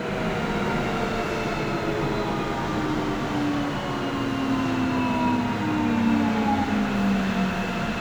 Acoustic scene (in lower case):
subway train